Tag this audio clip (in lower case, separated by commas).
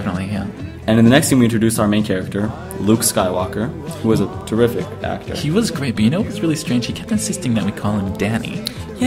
music, speech